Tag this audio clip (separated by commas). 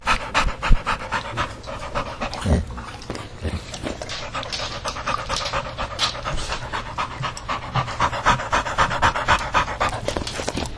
Dog, Animal, Domestic animals